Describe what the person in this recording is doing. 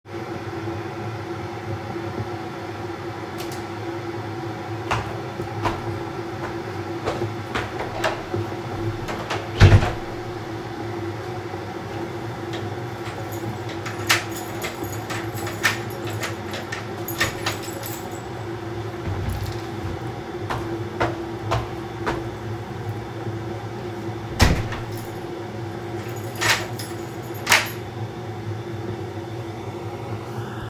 I had to leave the apartment, so I pushed the light switch off, walked towards the front door and finally left the house. In the background there was my kettle boiling water.